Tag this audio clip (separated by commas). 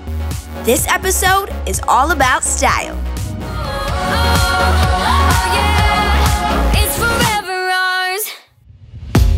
Music, Speech